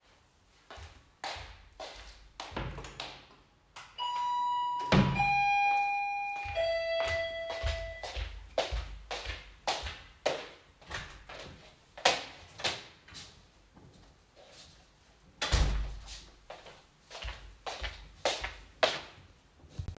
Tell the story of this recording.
At the beginning of the scene, I opened and closed a wardrobe drawer. Then the bell rang and I walked toward the entrance. I opened and closed the door at the end of the scene.